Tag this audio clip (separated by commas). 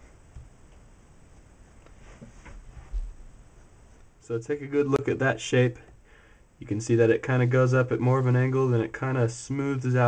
inside a small room, Speech